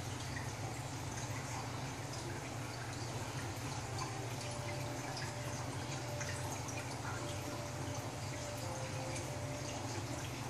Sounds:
Music

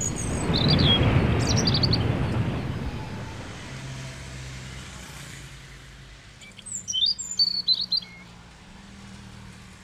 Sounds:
Bird vocalization, Chirp, Bird

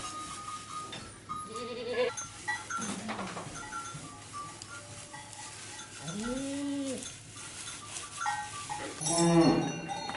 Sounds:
bovinae cowbell

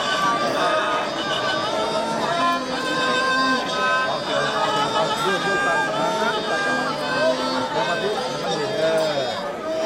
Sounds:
Speech, Music

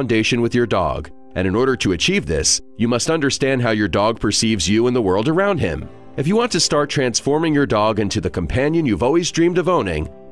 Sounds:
Speech, Music

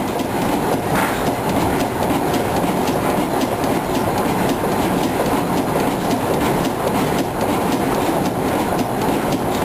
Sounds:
Engine

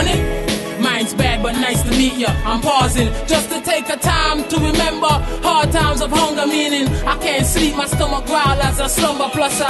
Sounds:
Music

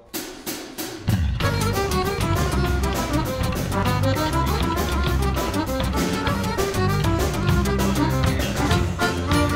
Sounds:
Music

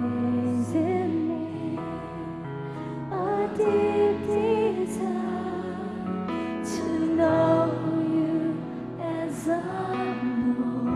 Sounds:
Music

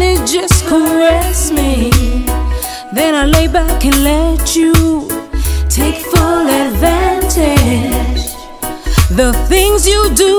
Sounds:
Pop music, Music

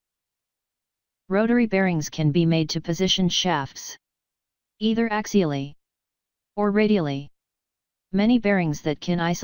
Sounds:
Speech

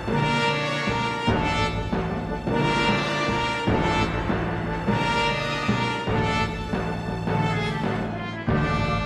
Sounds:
Music

